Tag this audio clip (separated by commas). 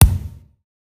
thud